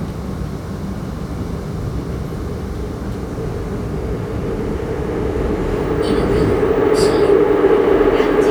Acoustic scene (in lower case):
subway train